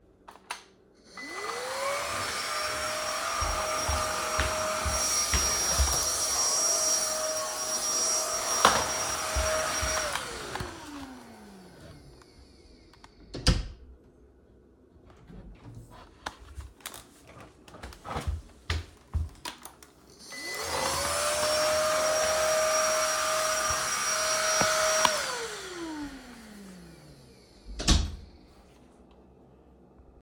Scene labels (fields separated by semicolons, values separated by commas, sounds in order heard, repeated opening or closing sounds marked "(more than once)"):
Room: living room, bedroom; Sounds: vacuum cleaner, footsteps, door (more than once)